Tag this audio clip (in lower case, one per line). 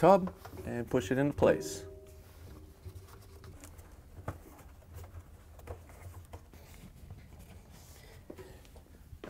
speech